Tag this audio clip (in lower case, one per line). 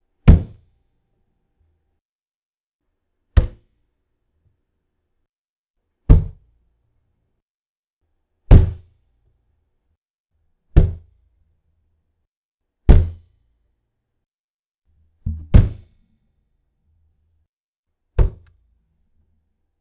thump